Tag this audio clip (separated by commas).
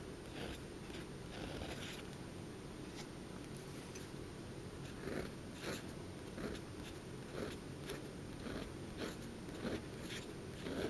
Writing